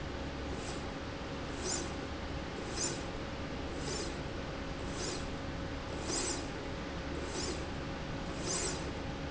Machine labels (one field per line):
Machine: slide rail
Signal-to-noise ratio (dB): -6 dB